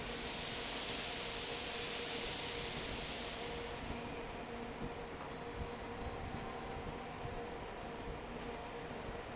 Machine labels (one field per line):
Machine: fan